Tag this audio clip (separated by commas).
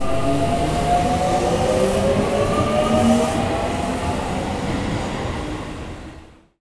metro, Rail transport, Vehicle